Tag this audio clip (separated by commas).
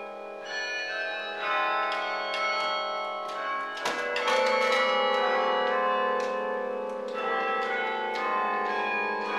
Tubular bells